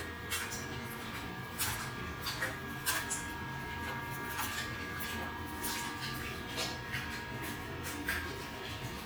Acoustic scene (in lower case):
restroom